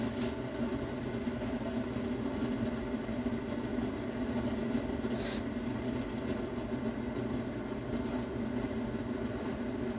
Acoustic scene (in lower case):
kitchen